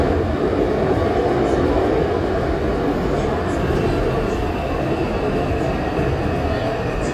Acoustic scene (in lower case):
subway train